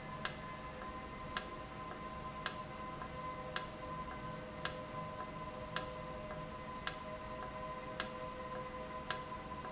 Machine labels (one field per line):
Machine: valve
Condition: normal